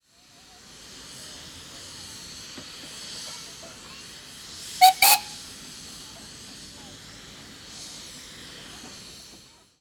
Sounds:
Vehicle, Train, Alarm, Rail transport, Hiss

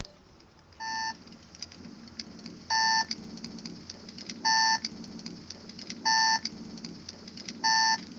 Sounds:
Alarm

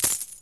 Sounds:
home sounds, Coin (dropping)

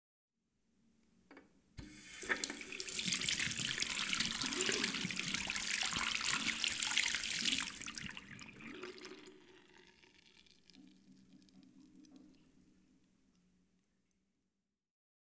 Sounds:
Water tap, home sounds

